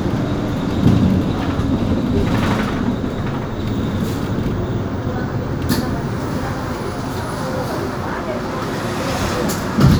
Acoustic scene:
bus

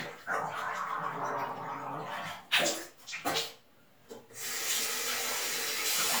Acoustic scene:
restroom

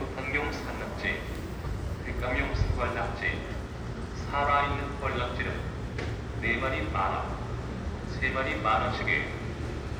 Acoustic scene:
residential area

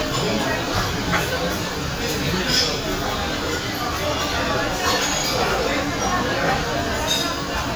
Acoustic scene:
crowded indoor space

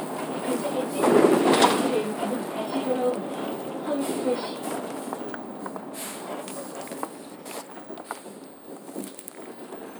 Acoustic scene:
bus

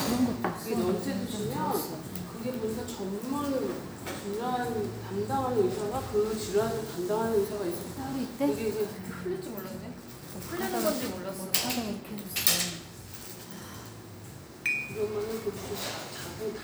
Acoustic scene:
cafe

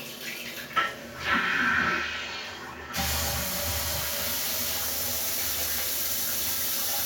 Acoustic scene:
restroom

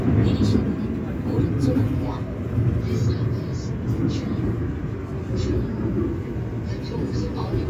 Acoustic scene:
subway train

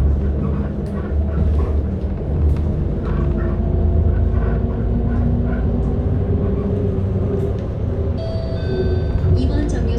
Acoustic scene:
bus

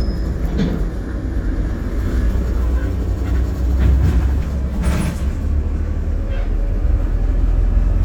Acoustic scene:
bus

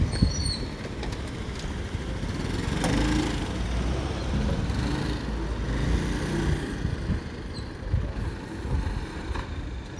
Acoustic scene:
residential area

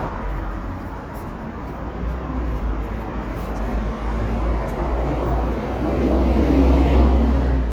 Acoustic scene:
street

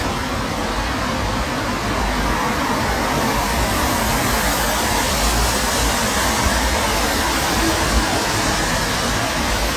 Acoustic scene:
street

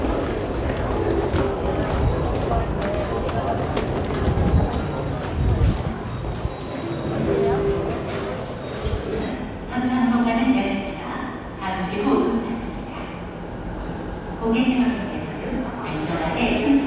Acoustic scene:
subway station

